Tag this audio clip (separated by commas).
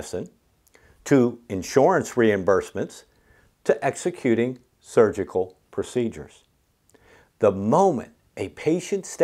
Speech